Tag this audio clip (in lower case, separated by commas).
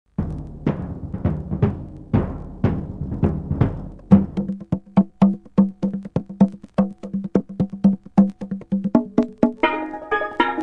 musical instrument, music, drum